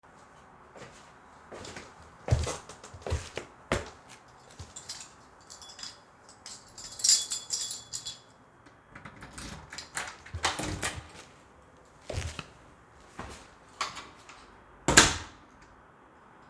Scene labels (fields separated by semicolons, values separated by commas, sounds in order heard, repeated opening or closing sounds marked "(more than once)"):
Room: hallway; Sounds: footsteps, keys, door (more than once)